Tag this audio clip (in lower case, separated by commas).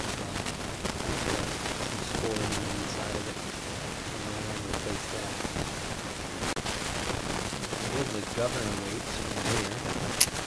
speech